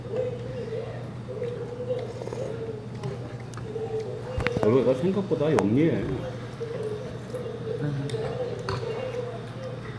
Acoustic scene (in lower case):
restaurant